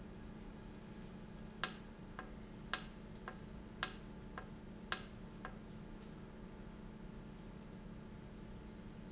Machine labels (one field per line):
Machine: valve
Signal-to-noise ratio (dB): 6 dB